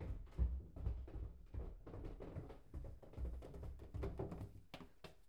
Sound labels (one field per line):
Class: footsteps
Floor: wooden floor